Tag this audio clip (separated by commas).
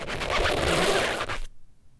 Squeak